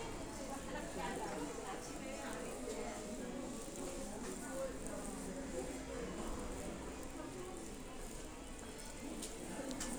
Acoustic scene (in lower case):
crowded indoor space